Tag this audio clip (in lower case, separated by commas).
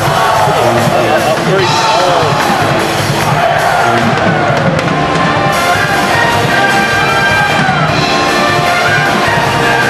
speech, music